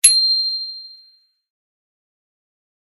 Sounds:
Alarm, Vehicle, Bicycle bell, Bicycle, Bell

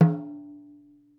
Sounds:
Percussion, Drum, Music, Musical instrument

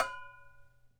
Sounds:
Bell

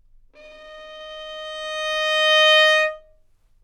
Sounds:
Music, Bowed string instrument, Musical instrument

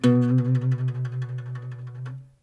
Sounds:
Music, Guitar, Acoustic guitar, Plucked string instrument, Musical instrument

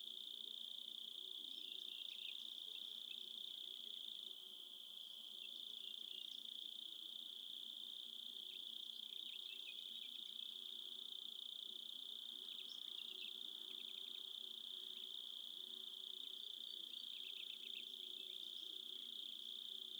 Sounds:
Cricket, Insect, Wild animals, Animal

